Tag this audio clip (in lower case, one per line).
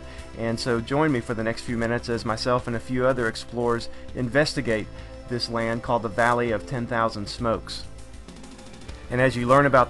speech
music